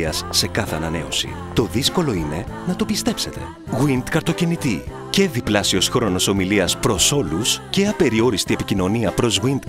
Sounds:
music
speech

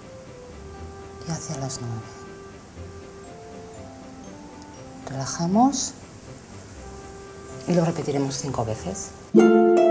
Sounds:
music
speech

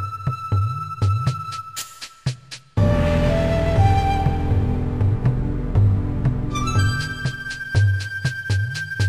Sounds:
music
soundtrack music

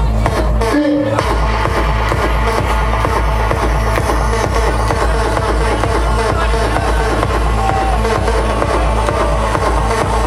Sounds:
electronic music
music
speech

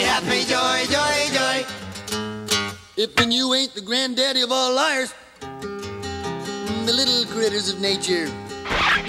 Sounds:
music

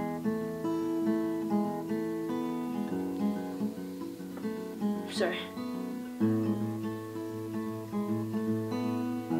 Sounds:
acoustic guitar
speech
guitar
strum
music
plucked string instrument
musical instrument

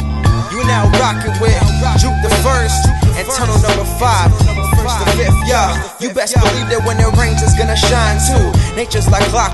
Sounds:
music
theme music
rhythm and blues

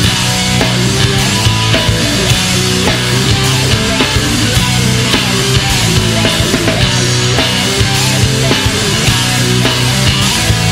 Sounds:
music

